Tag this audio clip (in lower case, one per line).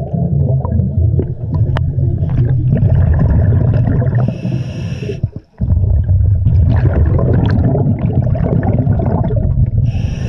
scuba diving